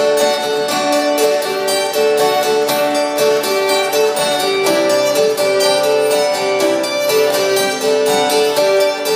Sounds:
Musical instrument, Guitar, Acoustic guitar, Plucked string instrument, Music, Strum

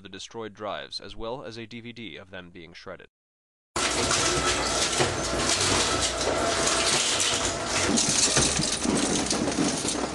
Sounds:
Speech

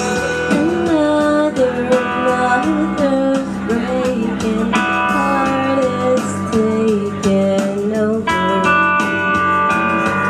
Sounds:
Singing, Music, Blues

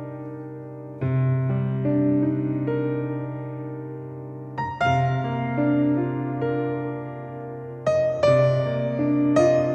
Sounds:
Music

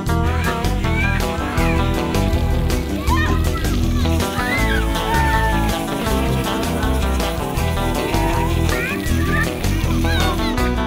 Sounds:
Music, Speech, Water

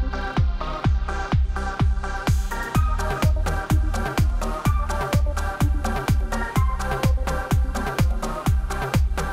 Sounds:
Music

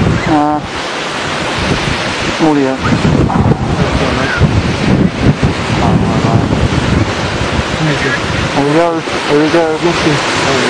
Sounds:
Water, Speech

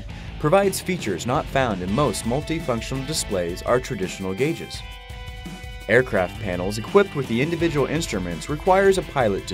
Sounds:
Music, Speech

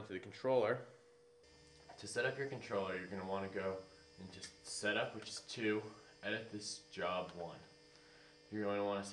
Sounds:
Speech

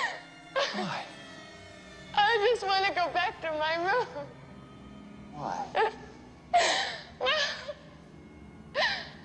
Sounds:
Speech, Music

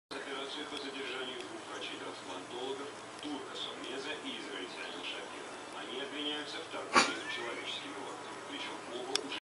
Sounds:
Speech

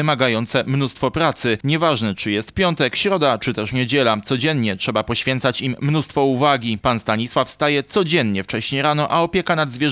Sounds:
Speech

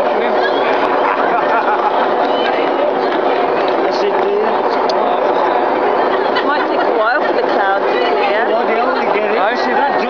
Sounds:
Speech

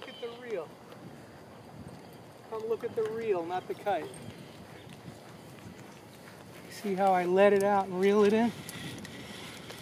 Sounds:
Mechanisms

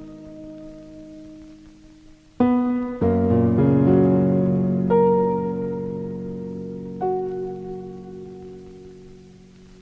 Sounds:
Music

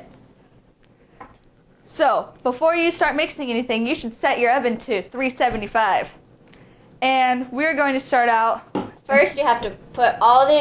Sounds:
Speech

